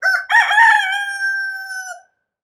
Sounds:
rooster, livestock, animal, fowl

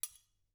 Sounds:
domestic sounds, cutlery

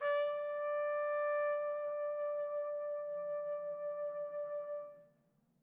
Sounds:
brass instrument, music, trumpet, musical instrument

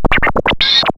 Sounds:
music, scratching (performance technique), musical instrument

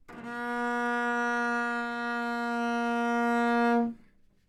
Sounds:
bowed string instrument, music, musical instrument

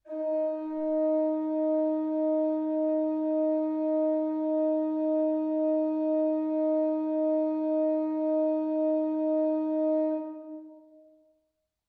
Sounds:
keyboard (musical), organ, music, musical instrument

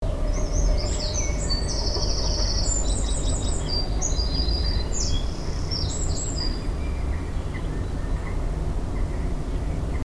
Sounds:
animal, wild animals, bird song, bird

